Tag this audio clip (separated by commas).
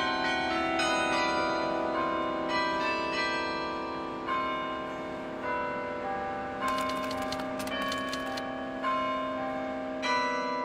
Change ringing (campanology)